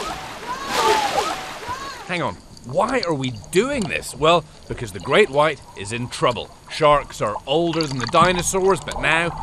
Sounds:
speech

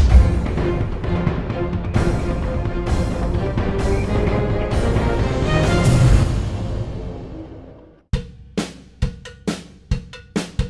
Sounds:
cymbal, hi-hat

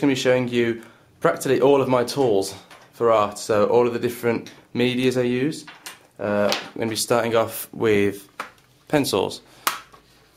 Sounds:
speech

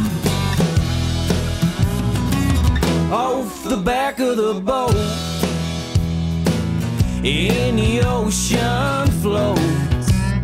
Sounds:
music

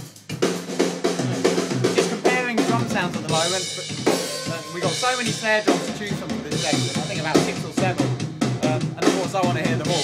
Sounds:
rimshot, music

